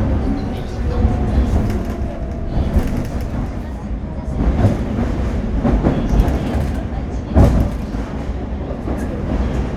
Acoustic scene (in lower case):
subway train